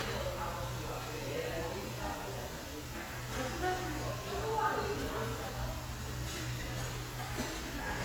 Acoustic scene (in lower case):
restaurant